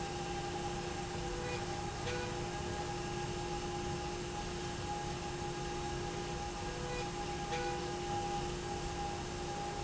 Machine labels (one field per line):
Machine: slide rail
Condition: normal